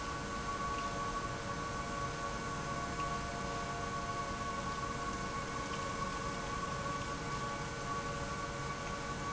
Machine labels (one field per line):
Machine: pump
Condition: abnormal